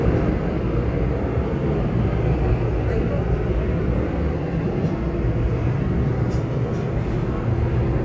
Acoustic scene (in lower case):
subway train